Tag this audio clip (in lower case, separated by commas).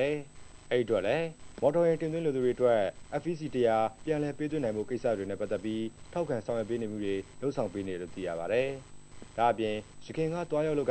speech